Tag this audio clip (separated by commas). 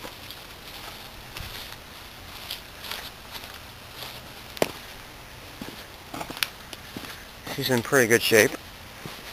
Speech, Walk